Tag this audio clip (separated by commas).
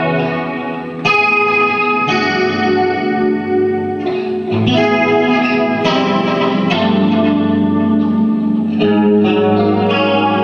Music